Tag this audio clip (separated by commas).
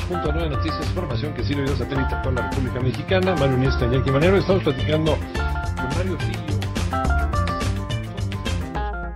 Speech, Music